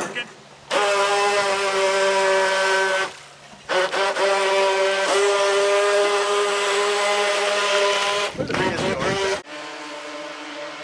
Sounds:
Speech

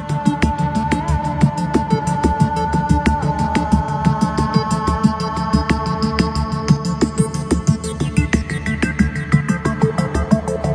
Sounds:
Music

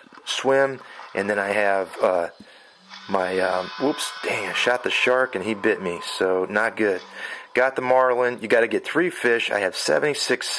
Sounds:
Speech

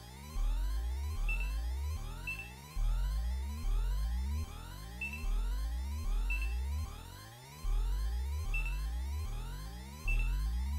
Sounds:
Music

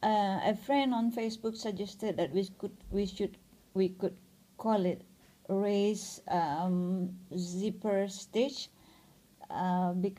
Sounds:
Speech

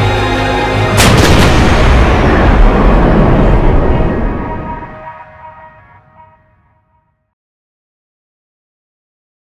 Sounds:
Music

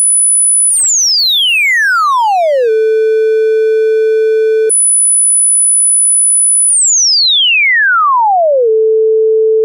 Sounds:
Sampler

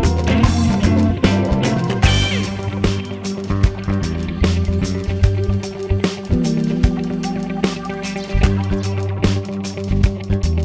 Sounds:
Music

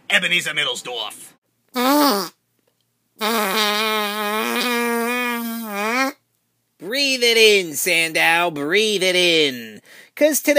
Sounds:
Speech

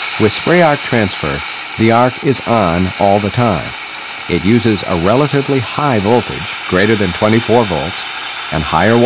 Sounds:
Speech

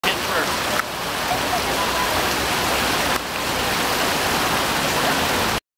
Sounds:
Speech

